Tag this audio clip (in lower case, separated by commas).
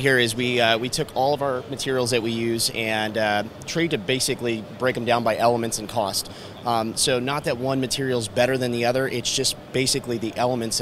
speech